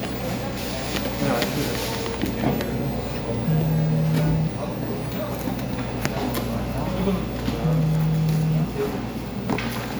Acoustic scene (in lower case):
cafe